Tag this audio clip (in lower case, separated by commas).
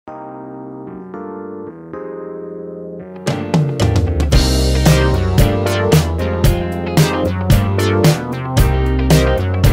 synthesizer